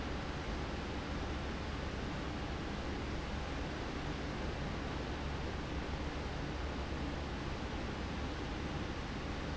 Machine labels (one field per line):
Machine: fan